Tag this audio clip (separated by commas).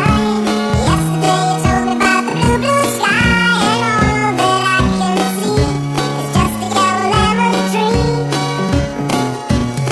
Music